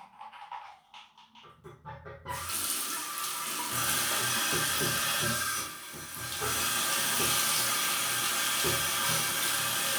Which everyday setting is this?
restroom